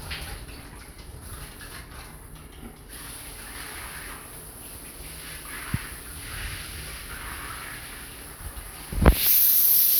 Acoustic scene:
restroom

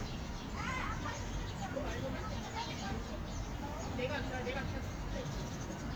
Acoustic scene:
park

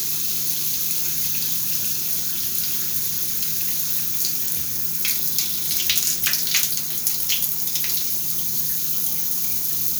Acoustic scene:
restroom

